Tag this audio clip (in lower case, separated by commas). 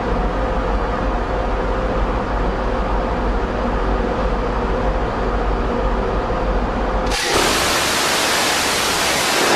vehicle, ship